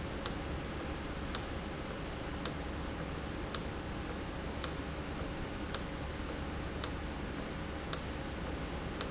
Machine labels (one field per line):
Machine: valve